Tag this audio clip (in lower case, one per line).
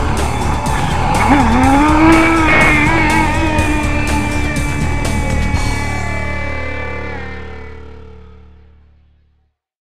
music
motorboat